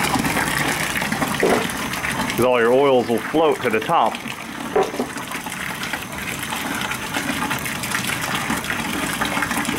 Liquid pours into a basin of some kind and then a man begins talking as the liquid continues